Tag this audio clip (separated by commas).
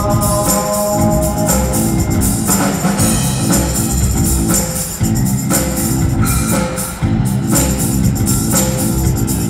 Music